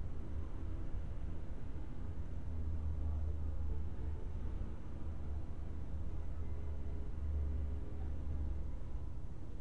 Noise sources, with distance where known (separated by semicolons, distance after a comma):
background noise